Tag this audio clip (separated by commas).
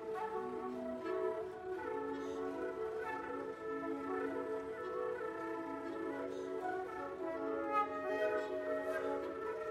Music